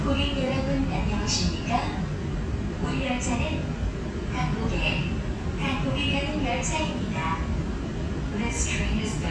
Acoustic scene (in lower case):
subway train